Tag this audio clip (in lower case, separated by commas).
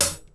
hi-hat, music, cymbal, musical instrument, percussion